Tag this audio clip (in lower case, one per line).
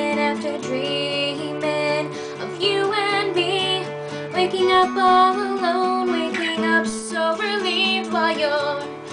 music